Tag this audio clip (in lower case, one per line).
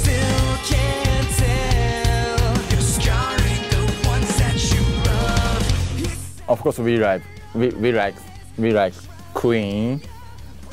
heavy metal
music
song
singing